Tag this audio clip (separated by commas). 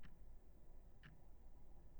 Clock, Tick-tock, Mechanisms